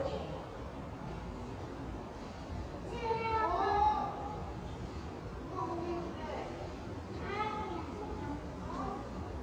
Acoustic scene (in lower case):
subway station